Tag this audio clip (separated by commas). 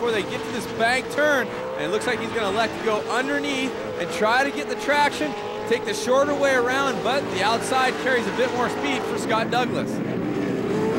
Speech, Vehicle, Car